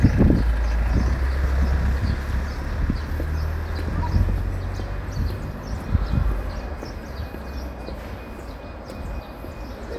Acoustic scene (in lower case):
residential area